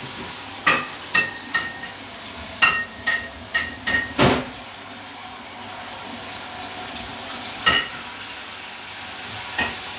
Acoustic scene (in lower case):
kitchen